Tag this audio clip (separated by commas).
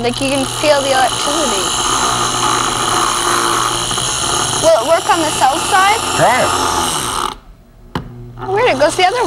Speech, inside a small room, Drill